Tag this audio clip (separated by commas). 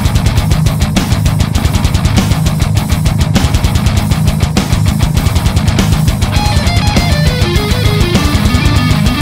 Pop music, Music